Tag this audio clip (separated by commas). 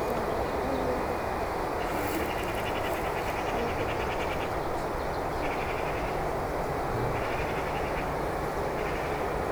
Wild animals, Animal, Bird